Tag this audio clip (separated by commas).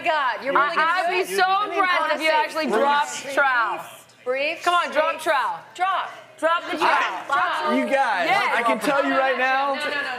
Speech